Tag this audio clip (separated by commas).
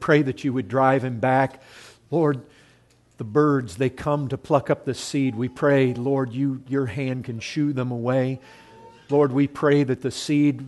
Speech